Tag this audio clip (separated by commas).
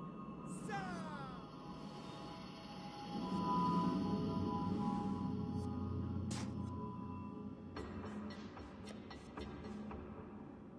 Music